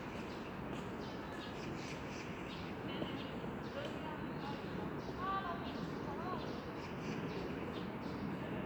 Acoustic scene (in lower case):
residential area